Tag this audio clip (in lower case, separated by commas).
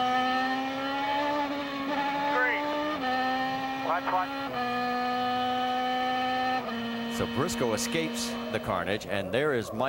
vehicle, auto racing